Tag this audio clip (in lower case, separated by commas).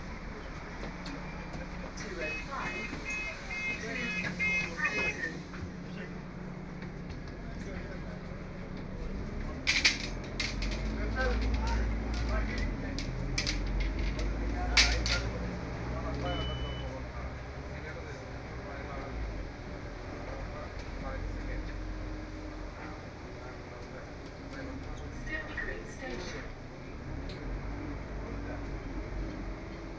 bus, motor vehicle (road), vehicle